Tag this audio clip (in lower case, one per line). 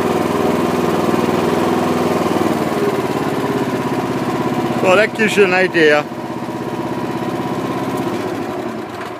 lawn mower
speech
vehicle